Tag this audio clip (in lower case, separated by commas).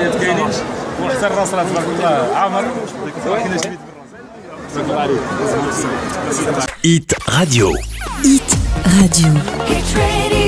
speech, music